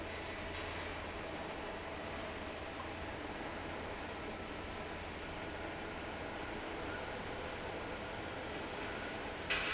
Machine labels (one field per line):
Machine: fan